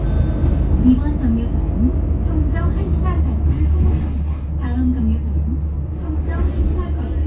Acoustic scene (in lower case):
bus